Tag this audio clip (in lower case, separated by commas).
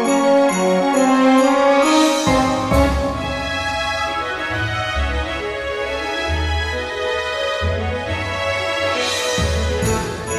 music